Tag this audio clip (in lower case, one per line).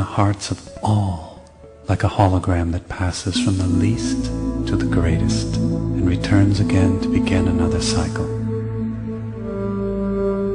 music
speech